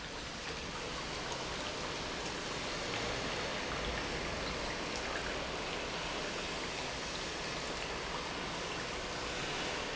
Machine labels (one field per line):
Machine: pump